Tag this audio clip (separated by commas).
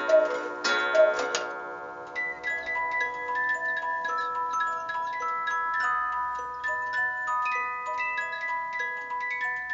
Chime